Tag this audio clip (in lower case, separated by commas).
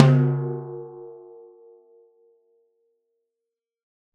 music, musical instrument, percussion, drum